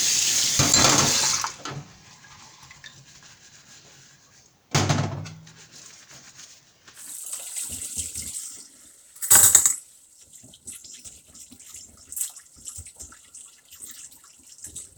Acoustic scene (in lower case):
kitchen